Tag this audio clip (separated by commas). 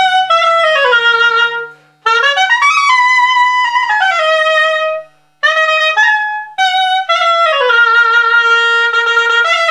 Traditional music, Music